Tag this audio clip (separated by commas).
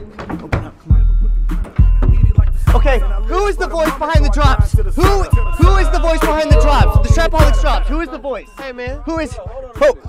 Rapping, Speech, Singing, Music